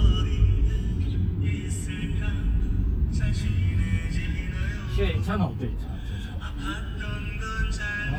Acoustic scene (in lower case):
car